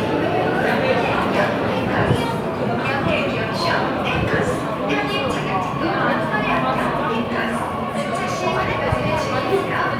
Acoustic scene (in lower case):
subway station